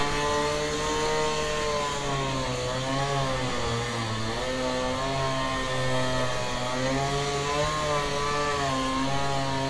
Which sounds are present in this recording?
unidentified powered saw